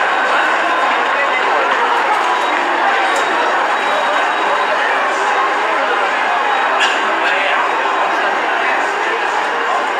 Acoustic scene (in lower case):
subway station